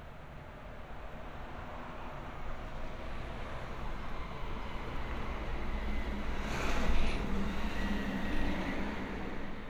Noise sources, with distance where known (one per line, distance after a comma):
engine of unclear size